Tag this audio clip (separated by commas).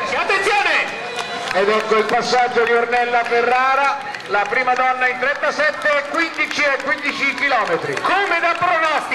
outside, urban or man-made, Speech, Run